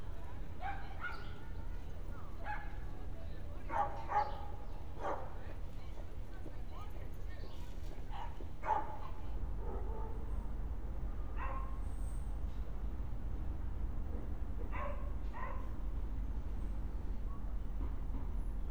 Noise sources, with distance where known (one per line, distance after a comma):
dog barking or whining, near